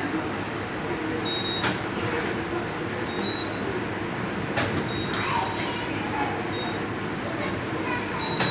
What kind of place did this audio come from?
subway station